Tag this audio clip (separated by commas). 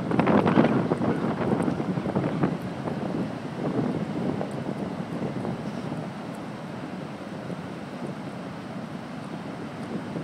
ocean burbling, Wind noise (microphone), Ocean, surf